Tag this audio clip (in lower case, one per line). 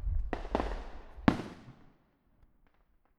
fireworks
explosion